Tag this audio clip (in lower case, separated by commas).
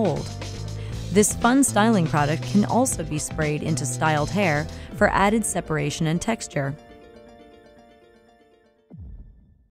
speech, music